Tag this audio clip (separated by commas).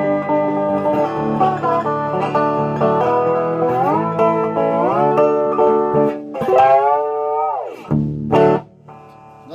playing steel guitar